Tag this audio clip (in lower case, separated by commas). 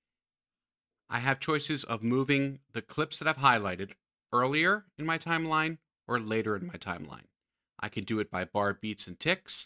speech